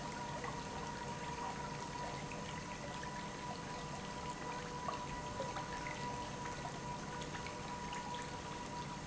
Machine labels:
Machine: pump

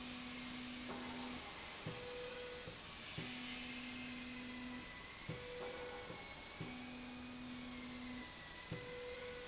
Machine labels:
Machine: slide rail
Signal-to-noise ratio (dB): 6 dB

